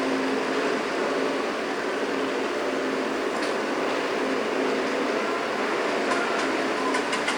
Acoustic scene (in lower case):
street